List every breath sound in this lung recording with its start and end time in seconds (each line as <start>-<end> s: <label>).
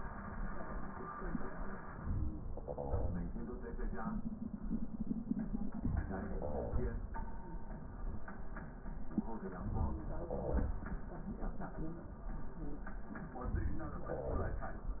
No breath sounds were labelled in this clip.